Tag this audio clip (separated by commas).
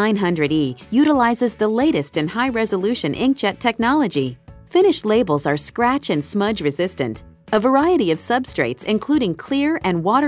Speech, Music